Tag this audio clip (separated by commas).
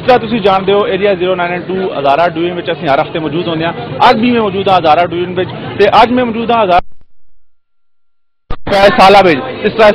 Speech